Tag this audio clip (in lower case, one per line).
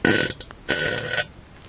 fart